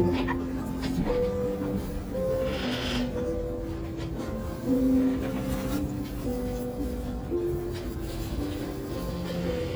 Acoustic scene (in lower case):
restaurant